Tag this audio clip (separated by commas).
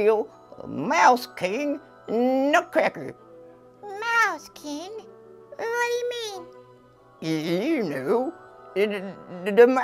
Speech, Music